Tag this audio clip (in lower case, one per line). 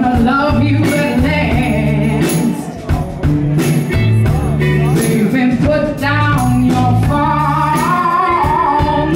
speech
music